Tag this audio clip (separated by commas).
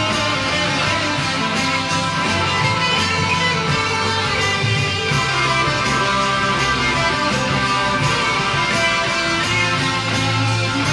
Guitar, Musical instrument, Strum, Plucked string instrument, Electric guitar, playing electric guitar, Music